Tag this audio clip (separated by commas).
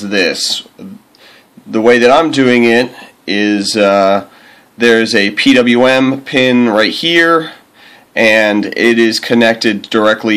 Speech